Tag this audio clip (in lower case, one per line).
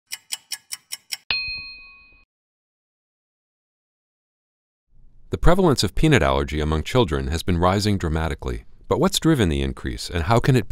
speech
silence